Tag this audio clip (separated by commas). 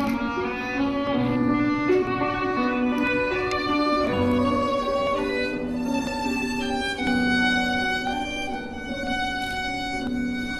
fiddle, Music, Musical instrument